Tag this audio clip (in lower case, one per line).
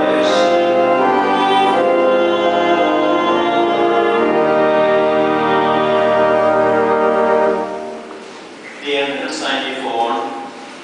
speech
music
inside a large room or hall